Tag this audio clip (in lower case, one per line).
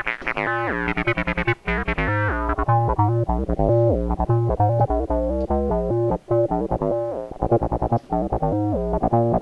sampler
synthesizer